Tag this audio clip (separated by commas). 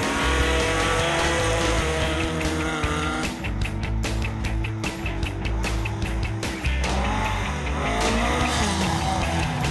Music, Skidding, Car, auto racing, Vehicle